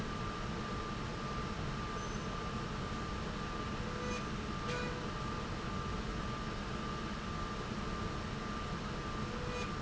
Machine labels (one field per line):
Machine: slide rail